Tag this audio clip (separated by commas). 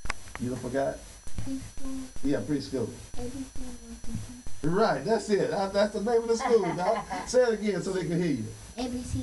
Speech